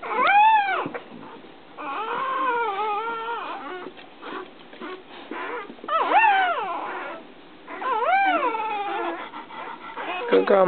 Puppies whimpering